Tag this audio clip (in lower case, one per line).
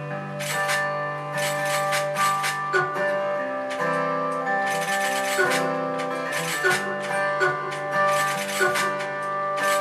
music